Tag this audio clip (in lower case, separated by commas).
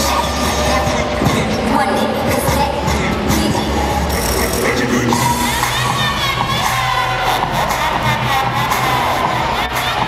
hip hop music